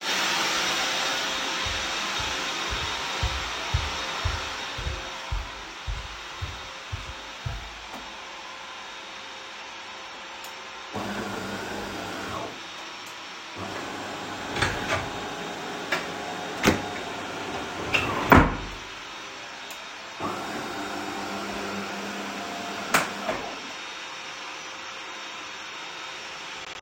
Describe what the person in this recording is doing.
I found waste while vacuum cleaning. I went to the kitchen and turned on the coffee machine. Then I opened the wastepaper bin and threw the waste away.